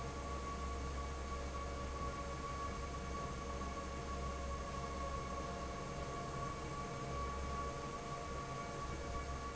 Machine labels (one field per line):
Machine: fan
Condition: normal